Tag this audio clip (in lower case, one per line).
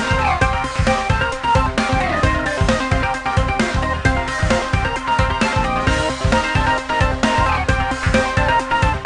video game music
music